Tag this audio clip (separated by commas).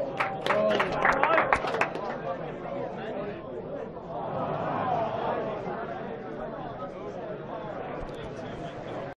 Speech